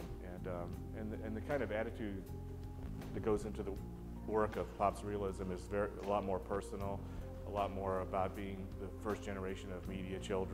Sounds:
speech, music

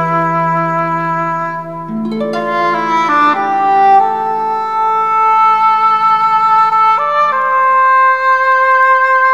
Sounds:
music, sad music, musical instrument, fiddle

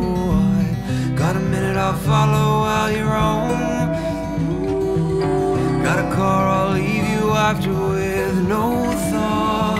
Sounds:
music, rhythm and blues

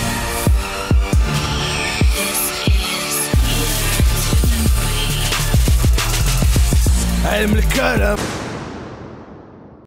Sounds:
music, soundtrack music

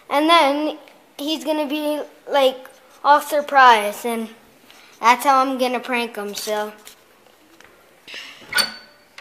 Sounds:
speech, inside a small room

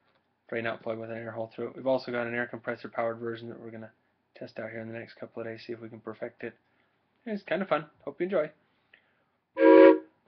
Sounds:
speech

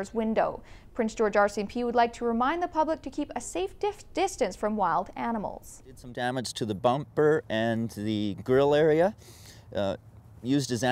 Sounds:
speech

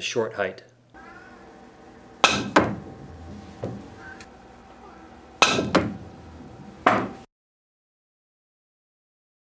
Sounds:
striking pool

